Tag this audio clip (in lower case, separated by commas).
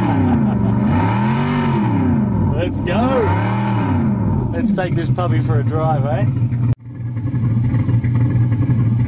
engine, auto racing, car, vehicle, speech